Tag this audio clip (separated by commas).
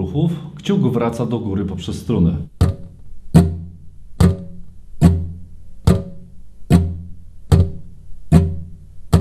Plucked string instrument, Musical instrument, Guitar, Speech, Music